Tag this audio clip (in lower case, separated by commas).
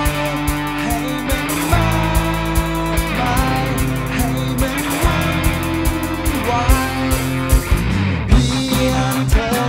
funk, music